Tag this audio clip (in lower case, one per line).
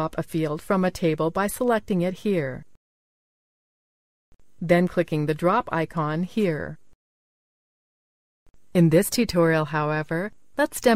speech